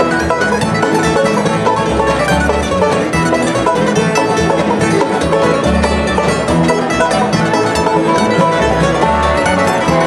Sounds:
mandolin, playing banjo, music, musical instrument, banjo

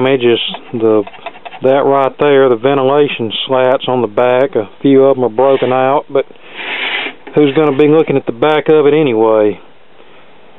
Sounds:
speech

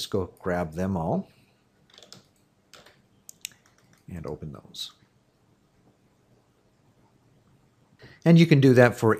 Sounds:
typing

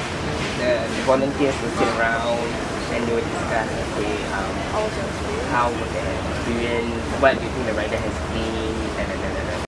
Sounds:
speech

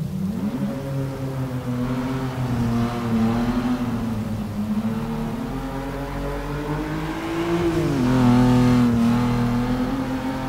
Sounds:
vehicle, auto racing, car

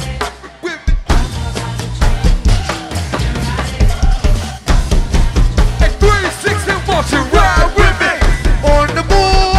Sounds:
music

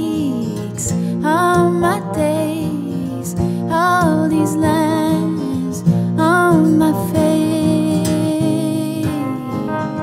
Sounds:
music

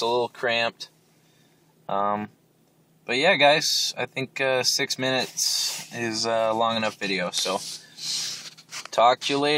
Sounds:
speech

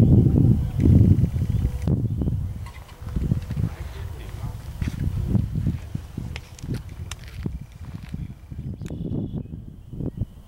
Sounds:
speech

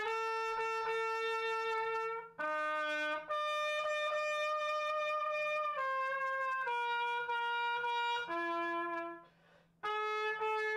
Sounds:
musical instrument, music, jazz, brass instrument, trumpet

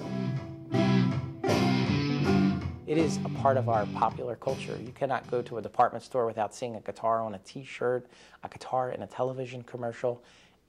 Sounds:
music, guitar, speech, plucked string instrument, musical instrument, bass guitar

